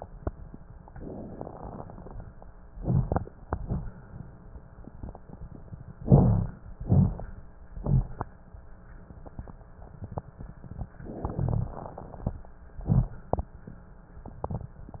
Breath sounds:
6.01-6.60 s: inhalation
6.01-6.60 s: rhonchi
6.81-7.16 s: exhalation
6.81-7.16 s: rhonchi
7.78-8.12 s: rhonchi

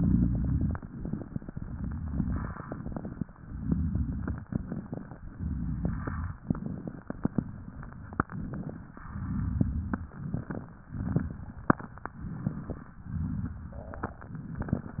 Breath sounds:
0.00-0.74 s: exhalation
0.00-0.74 s: crackles
0.80-1.48 s: inhalation
0.80-1.48 s: crackles
1.56-2.58 s: exhalation
1.56-2.58 s: crackles
2.60-3.28 s: inhalation
2.60-3.28 s: crackles
3.36-4.44 s: exhalation
3.36-4.44 s: crackles
4.48-5.24 s: inhalation
4.48-5.24 s: crackles
5.31-6.40 s: exhalation
5.31-6.40 s: crackles
6.45-7.16 s: inhalation
6.45-7.16 s: crackles
7.23-8.27 s: exhalation
7.23-8.27 s: crackles
8.31-9.01 s: inhalation
8.31-9.01 s: crackles
9.03-10.11 s: exhalation
9.03-10.11 s: crackles
10.13-10.87 s: inhalation
10.13-10.87 s: crackles
10.91-12.07 s: exhalation
10.91-12.07 s: crackles
12.18-12.96 s: inhalation
12.18-12.96 s: crackles
13.05-14.21 s: exhalation
13.05-14.21 s: crackles

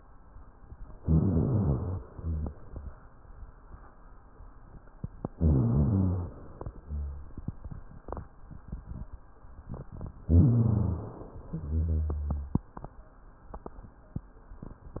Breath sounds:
0.99-2.06 s: rhonchi
1.01-2.04 s: inhalation
2.08-2.58 s: exhalation
2.08-2.58 s: rhonchi
5.34-6.35 s: inhalation
5.34-6.35 s: rhonchi
6.77-7.44 s: exhalation
6.77-7.44 s: rhonchi
10.22-11.21 s: rhonchi
10.22-11.43 s: inhalation
11.47-12.64 s: exhalation
11.47-12.64 s: rhonchi

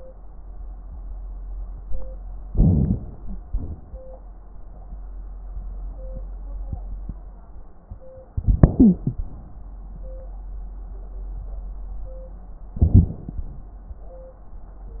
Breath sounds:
2.47-3.47 s: inhalation
2.95-3.47 s: wheeze
3.47-3.99 s: exhalation
8.34-9.34 s: inhalation
8.76-9.02 s: stridor
12.81-13.43 s: inhalation
12.81-13.43 s: crackles

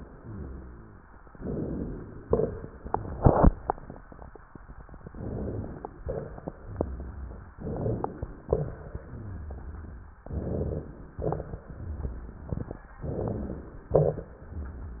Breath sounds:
0.12-1.01 s: rhonchi
1.41-2.30 s: inhalation
2.30-2.87 s: exhalation
2.30-2.87 s: crackles
5.09-5.98 s: inhalation
5.98-6.60 s: exhalation
5.98-6.60 s: crackles
6.62-7.51 s: rhonchi
7.55-8.45 s: inhalation
8.44-9.03 s: exhalation
8.45-9.01 s: crackles
9.09-9.98 s: rhonchi
10.29-11.20 s: inhalation
11.21-11.65 s: exhalation
11.21-11.65 s: crackles
11.76-12.56 s: rhonchi
13.02-13.93 s: inhalation
13.93-14.29 s: exhalation
13.93-14.29 s: crackles

